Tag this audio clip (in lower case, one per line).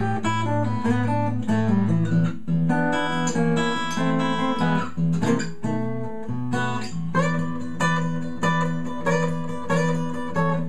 music
musical instrument
plucked string instrument
strum
guitar